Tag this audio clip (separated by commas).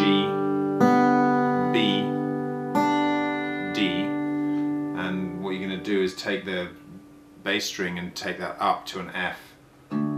Music, Speech